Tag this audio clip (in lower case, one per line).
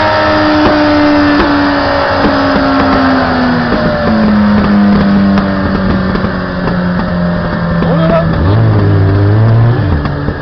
speech